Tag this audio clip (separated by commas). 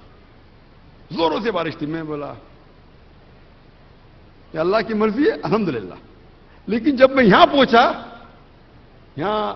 Narration, man speaking, Speech